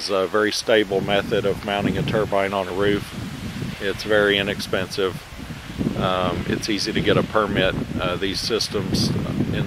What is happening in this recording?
Man speaking in the wind